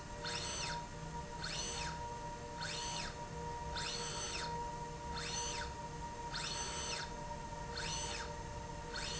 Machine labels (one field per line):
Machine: slide rail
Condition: normal